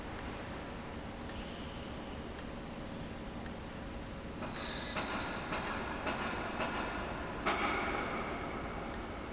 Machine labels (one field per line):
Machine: valve